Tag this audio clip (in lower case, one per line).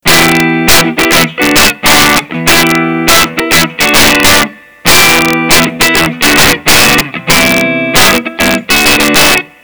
musical instrument
plucked string instrument
guitar
music